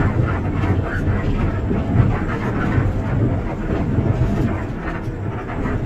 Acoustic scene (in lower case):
bus